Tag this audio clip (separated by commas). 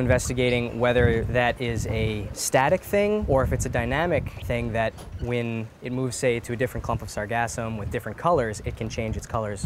Speech